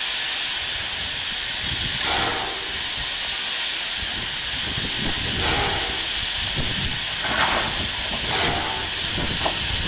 Steam hissing from a machine